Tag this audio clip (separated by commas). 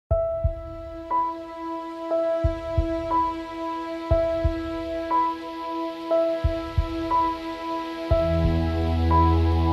Music, Ambient music